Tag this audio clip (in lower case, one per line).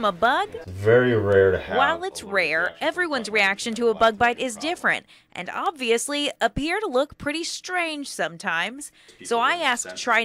speech